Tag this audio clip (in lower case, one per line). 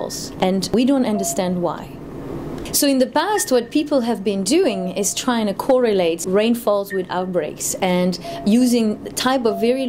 speech